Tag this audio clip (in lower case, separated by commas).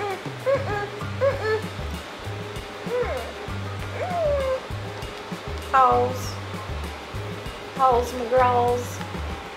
animal, speech, inside a small room, music, cat, pets